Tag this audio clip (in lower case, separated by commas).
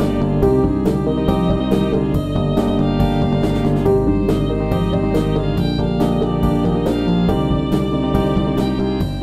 music, background music